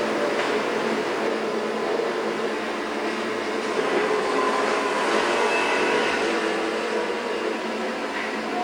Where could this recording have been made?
on a street